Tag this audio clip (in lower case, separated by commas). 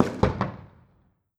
fireworks, explosion